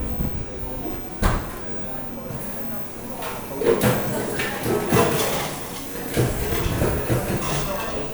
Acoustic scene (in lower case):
cafe